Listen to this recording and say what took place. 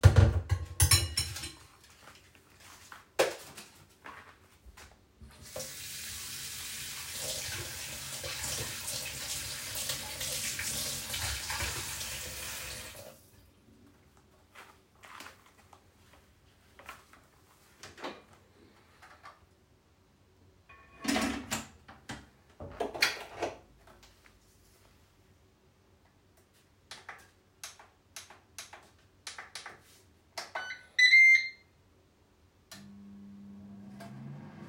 I placed dishes in the sink and turned on the water to wash them. While washing the dishes I moved them around in the sink. Then I started the microwave and it produced a few beeps.